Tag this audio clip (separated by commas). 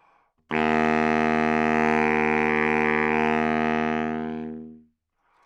Music, Musical instrument, woodwind instrument